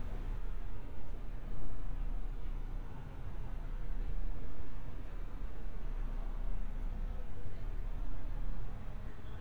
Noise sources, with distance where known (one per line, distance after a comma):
background noise